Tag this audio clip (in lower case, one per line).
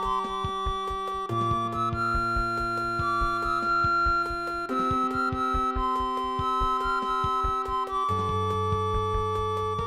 theme music
music